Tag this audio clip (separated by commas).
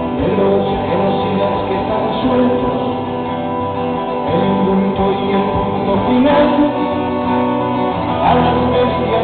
Music